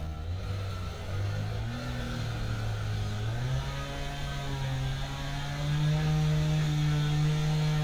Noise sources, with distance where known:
chainsaw

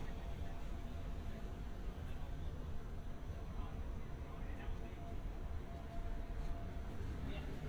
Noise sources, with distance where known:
person or small group talking, far

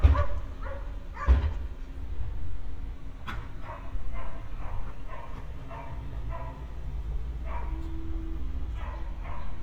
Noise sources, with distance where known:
dog barking or whining, far

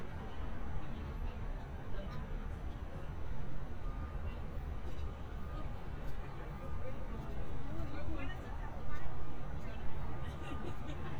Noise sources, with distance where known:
person or small group talking, near

